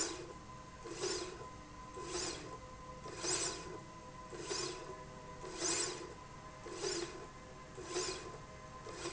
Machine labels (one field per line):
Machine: slide rail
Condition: normal